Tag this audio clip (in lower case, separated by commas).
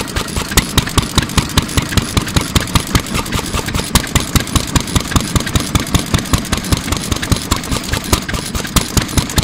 heavy engine (low frequency)